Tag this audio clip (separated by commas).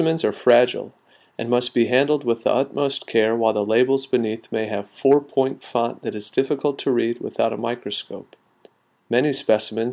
Speech